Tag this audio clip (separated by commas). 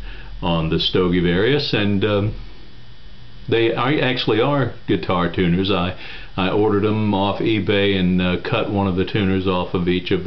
Speech